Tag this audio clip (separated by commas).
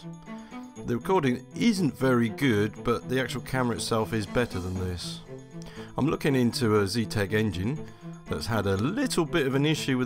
Speech, Music